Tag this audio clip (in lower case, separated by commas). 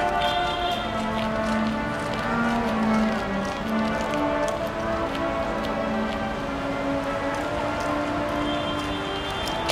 outside, urban or man-made, music